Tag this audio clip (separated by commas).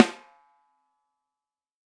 Musical instrument, Music, Drum, Snare drum, Percussion